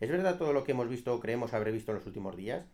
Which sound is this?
speech